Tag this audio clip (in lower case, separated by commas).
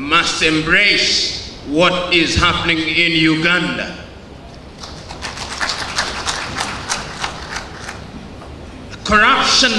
narration, male speech, speech